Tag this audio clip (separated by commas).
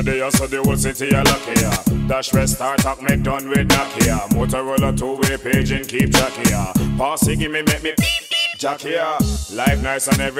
Music